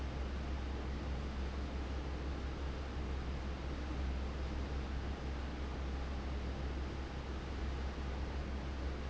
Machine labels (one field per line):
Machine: fan